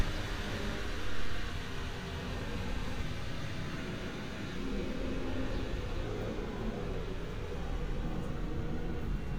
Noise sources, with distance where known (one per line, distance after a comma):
engine of unclear size